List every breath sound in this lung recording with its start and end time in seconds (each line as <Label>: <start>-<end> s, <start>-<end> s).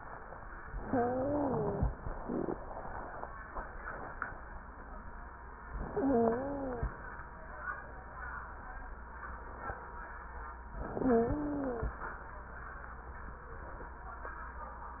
Inhalation: 0.74-1.87 s, 5.80-6.93 s, 10.84-11.97 s
Wheeze: 0.74-1.87 s, 5.80-6.93 s, 10.84-11.97 s